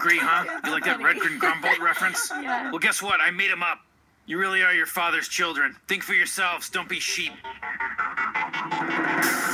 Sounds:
music
speech

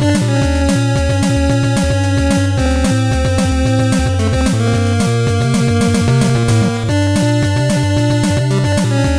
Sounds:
music
background music

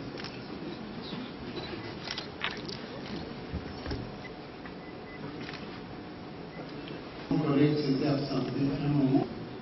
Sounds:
speech

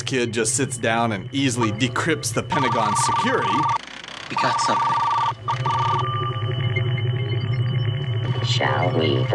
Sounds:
music
speech

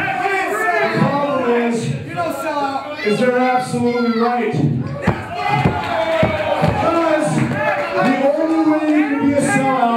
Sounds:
speech

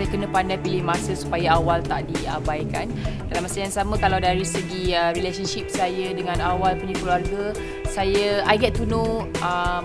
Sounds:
speech
music
inside a small room

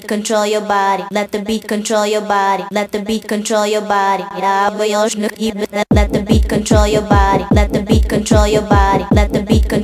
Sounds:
music
techno

